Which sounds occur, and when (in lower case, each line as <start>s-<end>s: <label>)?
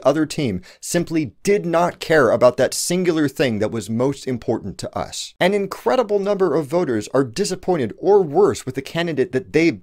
0.0s-9.8s: background noise
0.0s-0.6s: man speaking
0.6s-0.8s: breathing
0.8s-5.3s: man speaking
5.4s-9.8s: man speaking